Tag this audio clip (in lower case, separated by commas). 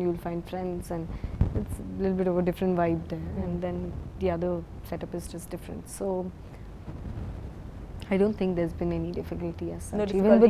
inside a small room, speech